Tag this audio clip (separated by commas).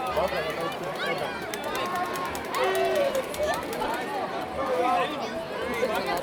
Crowd, Human group actions